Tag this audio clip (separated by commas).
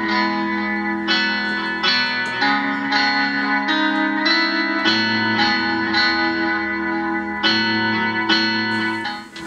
inside a small room, Music, Musical instrument, Keyboard (musical)